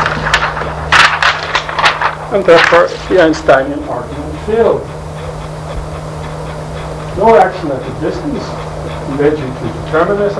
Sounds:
speech

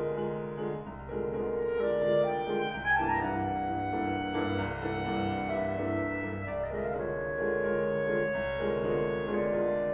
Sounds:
playing clarinet

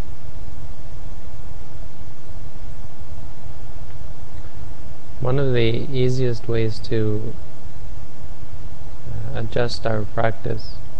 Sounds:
speech

